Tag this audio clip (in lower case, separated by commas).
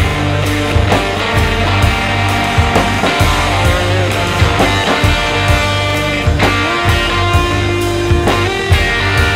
music, psychedelic rock